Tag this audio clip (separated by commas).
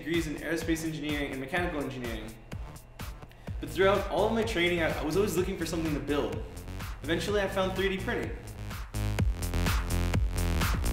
Speech, Music